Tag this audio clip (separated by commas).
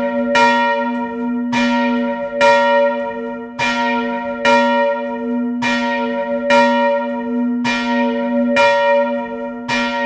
Bell, Church bell